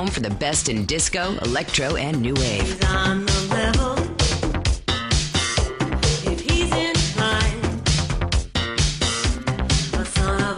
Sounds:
Disco

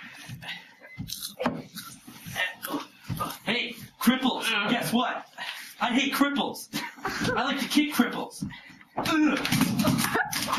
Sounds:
man speaking, Speech

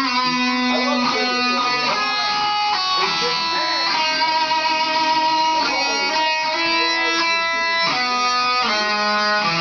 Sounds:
Music, Speech, Musical instrument, Guitar, Strum, Electric guitar

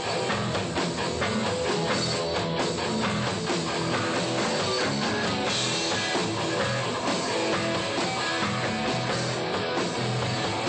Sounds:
Music

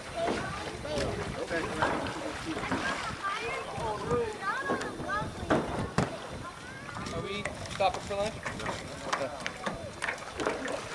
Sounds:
Vehicle, Water vehicle, Rowboat, Speech

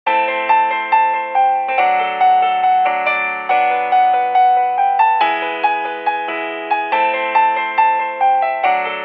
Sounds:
Music

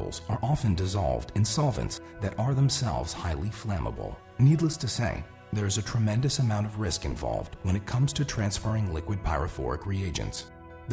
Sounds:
Speech, Music

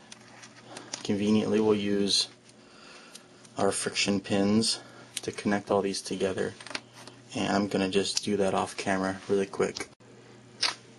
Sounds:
Speech

